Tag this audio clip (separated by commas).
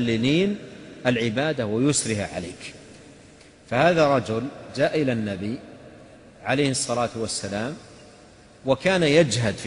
Speech